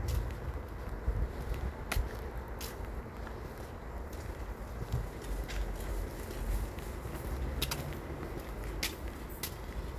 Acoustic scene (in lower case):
residential area